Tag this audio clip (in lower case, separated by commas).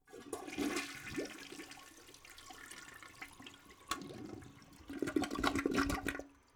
toilet flush, home sounds